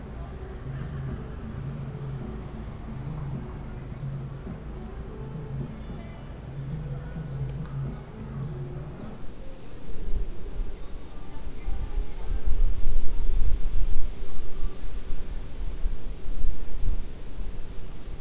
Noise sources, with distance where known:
music from an unclear source

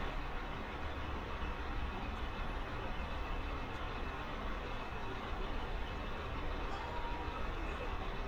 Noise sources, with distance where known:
small-sounding engine, near

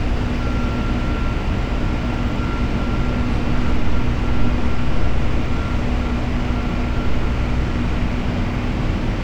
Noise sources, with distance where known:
engine of unclear size, near

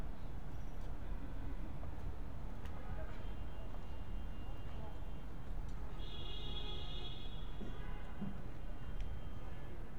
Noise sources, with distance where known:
car horn

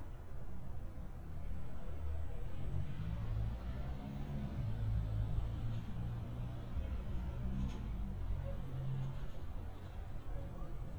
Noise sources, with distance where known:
engine of unclear size

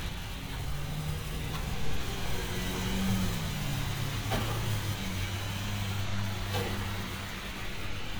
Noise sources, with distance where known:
medium-sounding engine

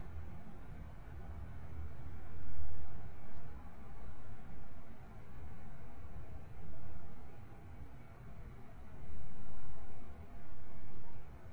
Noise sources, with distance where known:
background noise

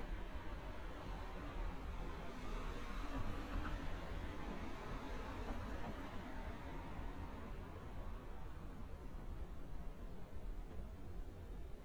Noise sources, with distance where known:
medium-sounding engine

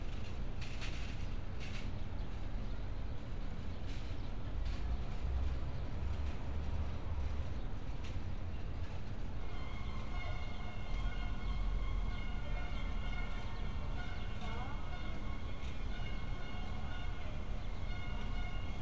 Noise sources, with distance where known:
background noise

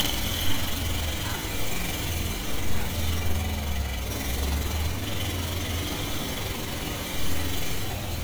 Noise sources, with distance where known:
unidentified impact machinery, near

